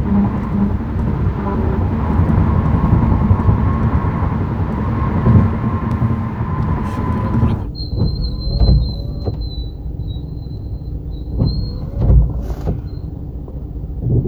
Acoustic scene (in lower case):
car